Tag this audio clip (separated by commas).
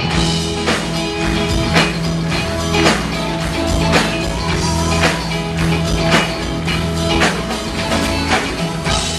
Music